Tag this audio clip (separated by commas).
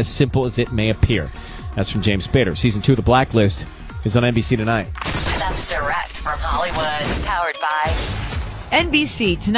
Speech, Music